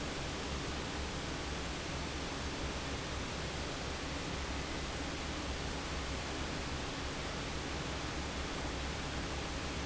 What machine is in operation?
fan